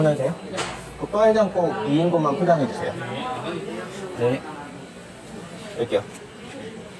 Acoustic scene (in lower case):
restaurant